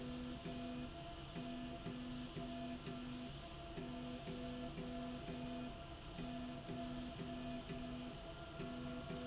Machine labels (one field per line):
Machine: slide rail